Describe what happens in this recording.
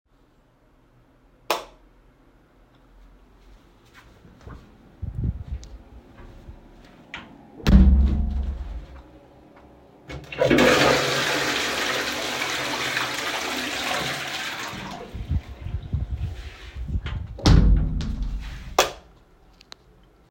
Turned on the light, entered the bathroom (soft glass door), flushed the toiled, exited and closed the door, turned off the light.